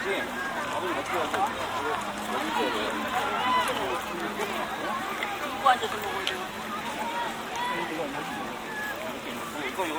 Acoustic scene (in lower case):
park